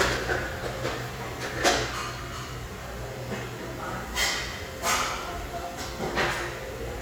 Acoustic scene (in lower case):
restaurant